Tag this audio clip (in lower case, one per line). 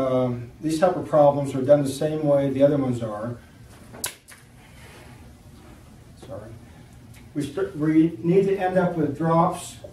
speech